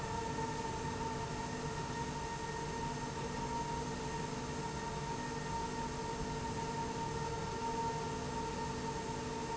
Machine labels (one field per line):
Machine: slide rail